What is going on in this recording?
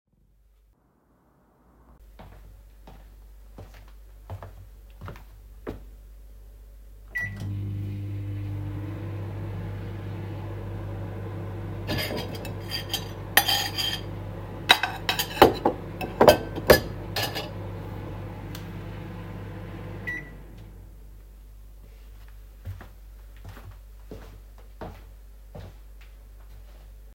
I walked to the microwave and started it. While it was running, I handled cutlery and dishes nearby so that both sound events overlapped.